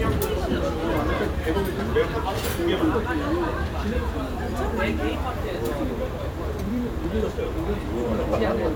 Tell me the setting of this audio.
restaurant